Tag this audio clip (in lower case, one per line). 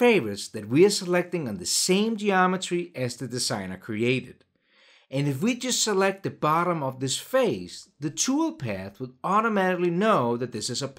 speech